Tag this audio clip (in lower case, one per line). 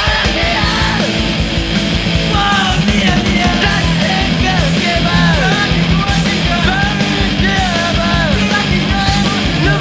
music